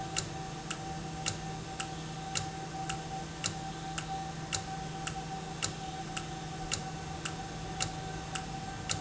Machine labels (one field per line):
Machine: valve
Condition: normal